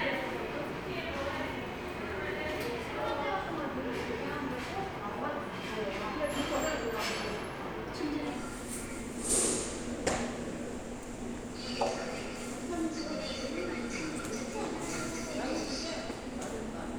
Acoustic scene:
subway station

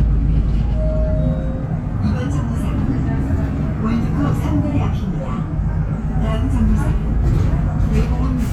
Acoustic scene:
bus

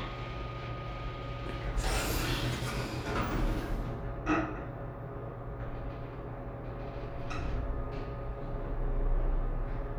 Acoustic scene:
elevator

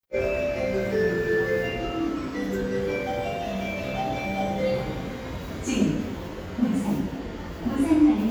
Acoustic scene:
subway station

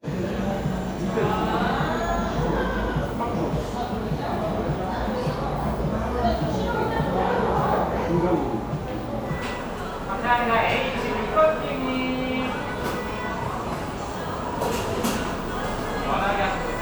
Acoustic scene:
cafe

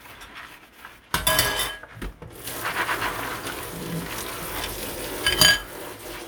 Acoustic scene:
kitchen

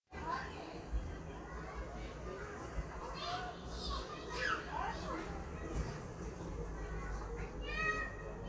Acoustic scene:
residential area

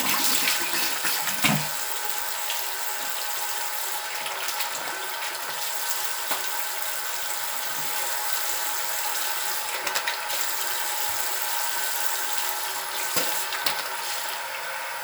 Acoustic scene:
restroom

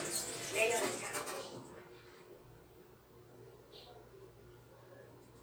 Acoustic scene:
elevator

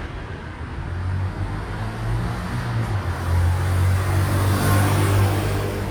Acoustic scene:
street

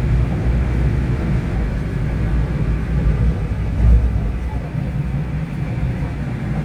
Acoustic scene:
subway train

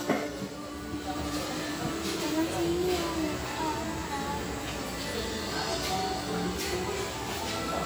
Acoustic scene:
restaurant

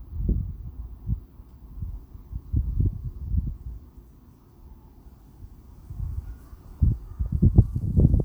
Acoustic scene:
residential area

